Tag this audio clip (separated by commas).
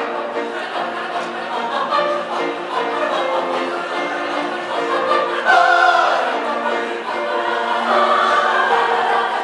singing choir